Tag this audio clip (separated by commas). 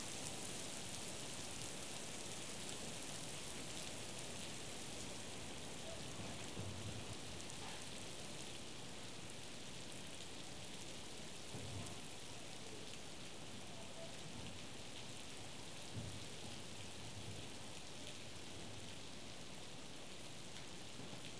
Rain, Water